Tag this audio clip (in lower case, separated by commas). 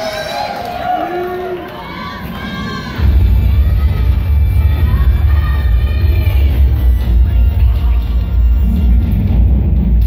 speech, music